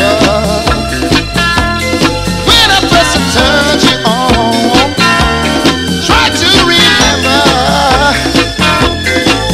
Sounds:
Music

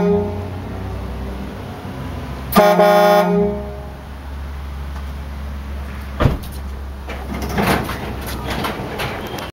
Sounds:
Vehicle

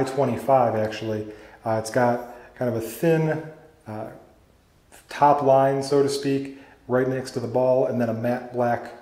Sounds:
Speech

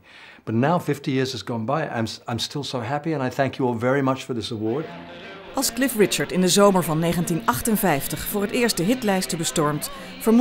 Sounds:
Music, Speech

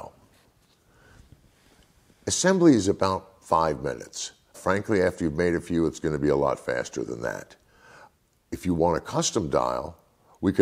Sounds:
Speech

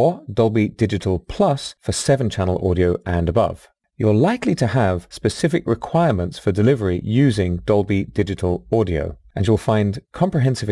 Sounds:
Speech

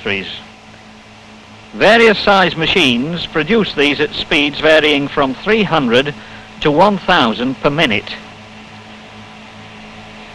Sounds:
Speech

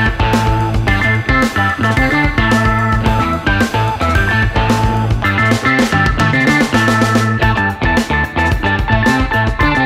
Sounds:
Music

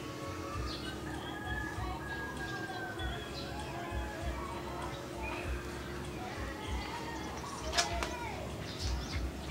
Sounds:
Bird, tweet, bird song

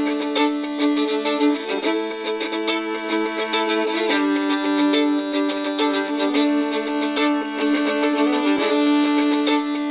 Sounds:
Musical instrument, Violin, Music

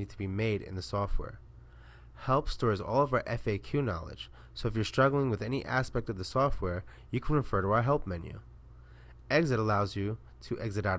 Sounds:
Speech

